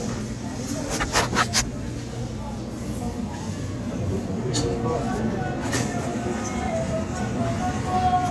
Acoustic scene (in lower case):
crowded indoor space